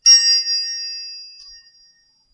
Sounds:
Bell

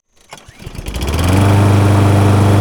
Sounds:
Engine, Engine starting

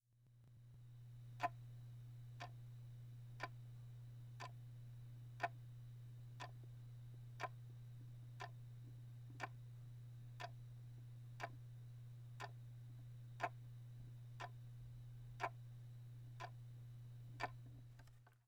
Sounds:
Tick-tock, Mechanisms, Clock

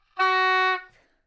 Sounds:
woodwind instrument, Musical instrument, Music

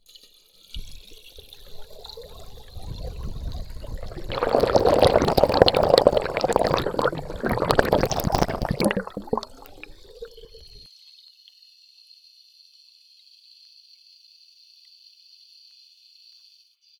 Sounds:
Water, Gurgling

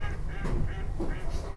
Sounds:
Wild animals, Animal, Bird

